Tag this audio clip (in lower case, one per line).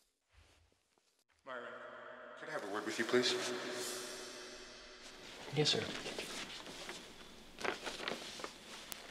speech